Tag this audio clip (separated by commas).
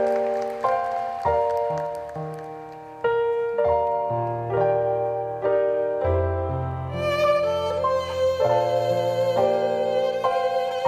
Music, fiddle, Musical instrument